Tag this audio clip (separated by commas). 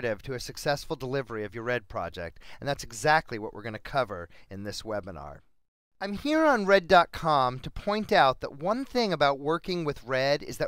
Speech